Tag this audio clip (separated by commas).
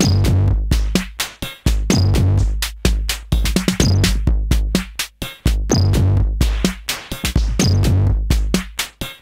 Sampler, Music